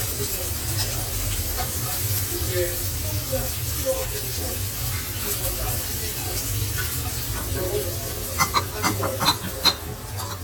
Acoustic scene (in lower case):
restaurant